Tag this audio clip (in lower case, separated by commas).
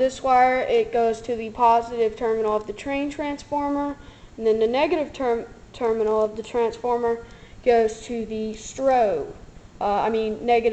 speech